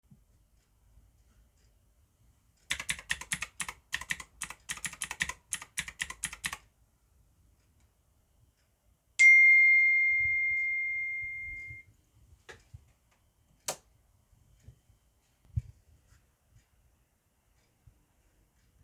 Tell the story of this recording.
I typed on the keyboard at the desk when a phone notification rang and then I turned the light switch off.